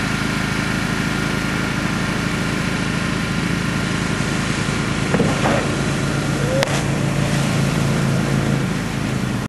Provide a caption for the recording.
A boat motor is running, scraping occurs, and water splashes